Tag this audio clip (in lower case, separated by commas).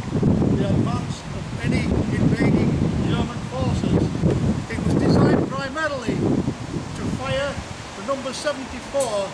speech, outside, rural or natural